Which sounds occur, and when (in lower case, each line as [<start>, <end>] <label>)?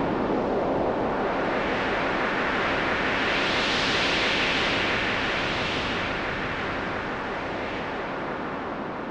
[0.00, 9.10] sound effect